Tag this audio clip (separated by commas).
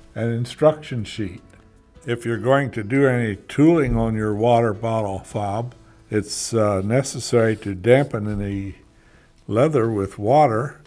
Speech